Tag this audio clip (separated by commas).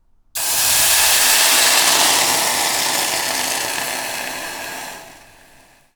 Hiss